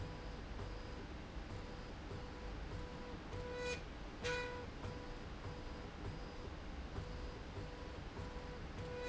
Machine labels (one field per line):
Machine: slide rail